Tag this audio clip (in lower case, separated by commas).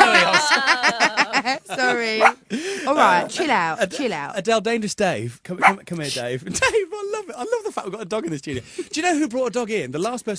animal, bow-wow, pets, dog, speech